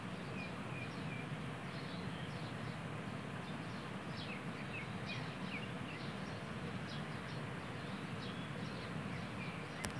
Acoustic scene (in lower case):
park